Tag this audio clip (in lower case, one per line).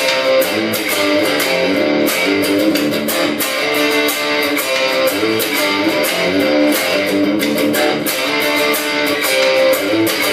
plucked string instrument
guitar
electric guitar
music
strum
musical instrument